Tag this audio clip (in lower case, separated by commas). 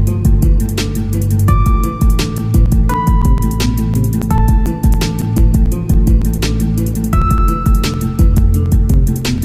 music